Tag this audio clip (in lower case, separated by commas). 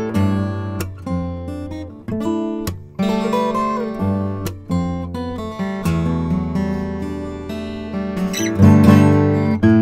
musical instrument, strum, music, guitar, acoustic guitar, plucked string instrument